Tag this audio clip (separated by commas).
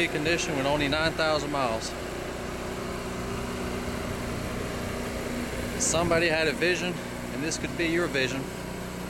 Speech